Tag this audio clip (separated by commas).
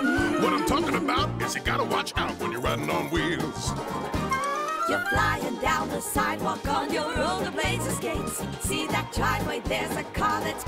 Speech, Music